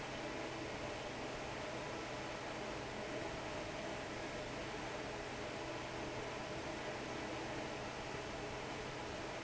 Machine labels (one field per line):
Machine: fan